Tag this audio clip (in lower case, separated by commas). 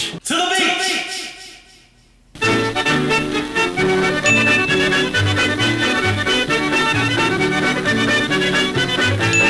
music, speech